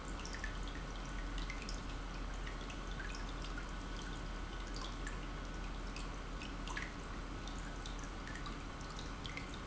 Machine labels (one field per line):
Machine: pump